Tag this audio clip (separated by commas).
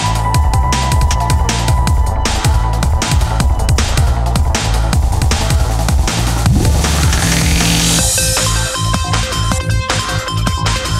Techno, Electronic music, Music, Dubstep